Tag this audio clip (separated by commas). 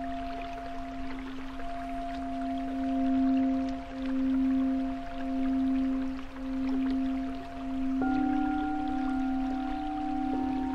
Music